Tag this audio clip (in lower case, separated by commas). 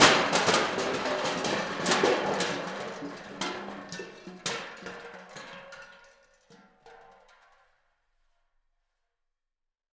crushing